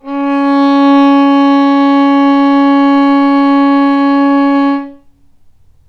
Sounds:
Bowed string instrument, Musical instrument, Music

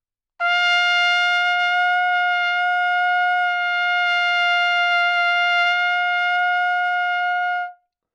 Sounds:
Trumpet, Brass instrument, Music, Musical instrument

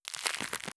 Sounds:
Crackle

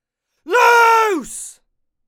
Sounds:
Shout, Human voice

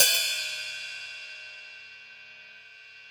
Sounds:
Percussion, Music, Musical instrument, Hi-hat, Cymbal

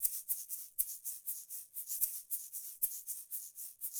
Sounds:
Music, Musical instrument, Percussion, Rattle (instrument)

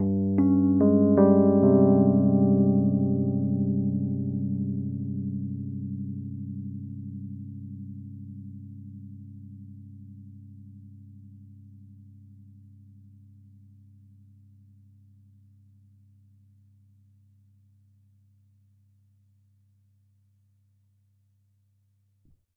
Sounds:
Musical instrument, Keyboard (musical), Piano, Music

